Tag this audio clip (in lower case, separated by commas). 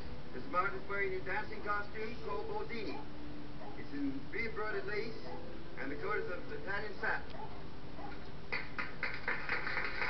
speech, music, inside a large room or hall